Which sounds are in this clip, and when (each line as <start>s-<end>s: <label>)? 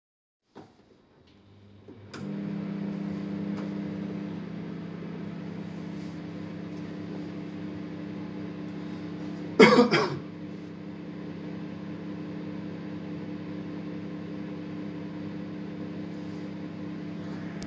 2.1s-17.7s: microwave